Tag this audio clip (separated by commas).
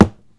Thump